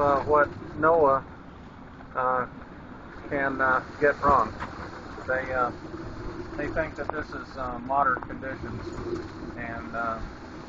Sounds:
Water vehicle, Speech, Vehicle

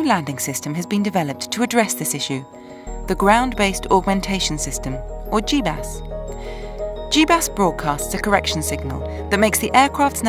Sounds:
Music, Speech

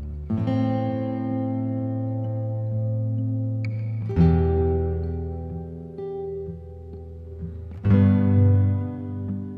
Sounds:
Plucked string instrument, Music, Acoustic guitar, Musical instrument, Strum, Guitar

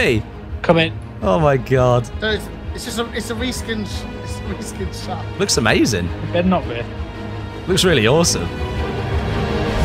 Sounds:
crocodiles hissing

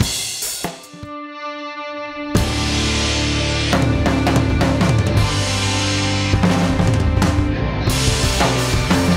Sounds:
Music

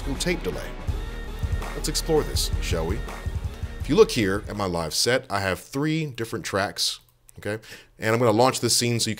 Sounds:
Speech, Music

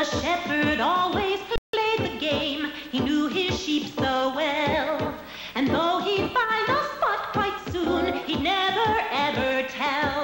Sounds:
Music

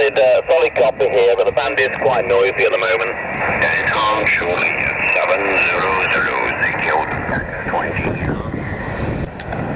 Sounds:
Speech, outside, rural or natural

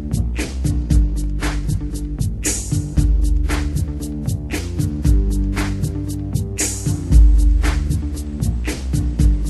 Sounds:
Music

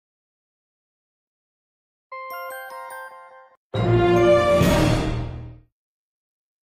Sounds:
Television, Music

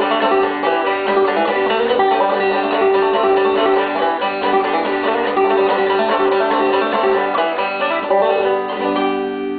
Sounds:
Plucked string instrument, Music, Musical instrument, Banjo

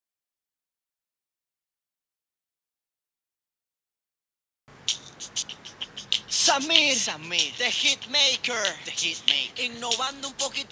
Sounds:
Speech, Music, Singing

